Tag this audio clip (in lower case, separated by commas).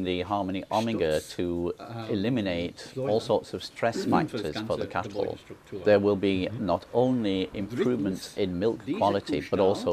speech